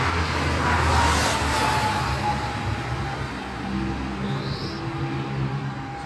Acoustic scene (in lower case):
street